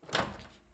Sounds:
Microwave oven, home sounds

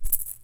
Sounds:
Percussion, Musical instrument, Rattle (instrument), Music

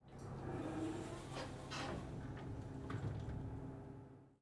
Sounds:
Domestic sounds, Sliding door, Door

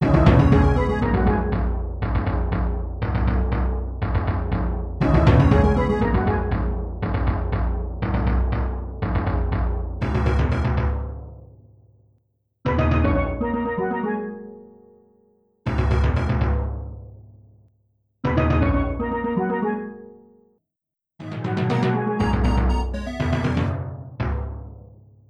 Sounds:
Music, Percussion, Drum, Musical instrument

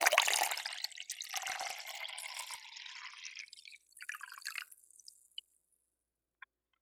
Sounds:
Liquid

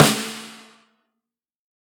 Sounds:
Percussion, Musical instrument, Snare drum, Music, Drum

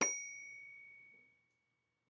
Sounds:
Bell, Telephone, Alarm

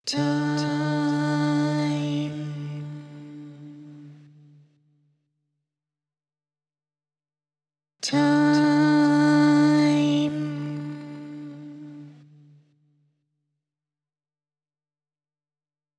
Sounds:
Singing, Human voice

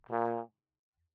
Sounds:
Musical instrument, Music, Brass instrument

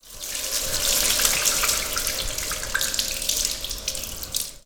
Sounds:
home sounds, Sink (filling or washing)

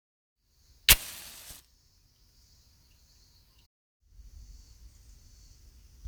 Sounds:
Fire

